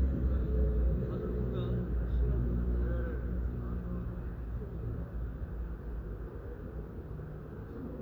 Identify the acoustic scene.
residential area